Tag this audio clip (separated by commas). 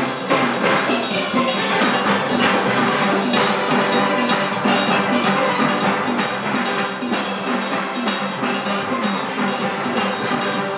Music, Steelpan